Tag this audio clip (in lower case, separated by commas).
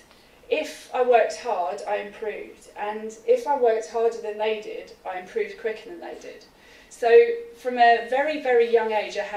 speech, female speech